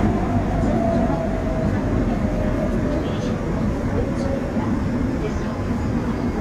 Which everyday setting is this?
subway train